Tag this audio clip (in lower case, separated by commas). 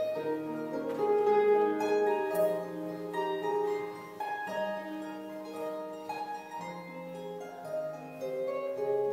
playing harp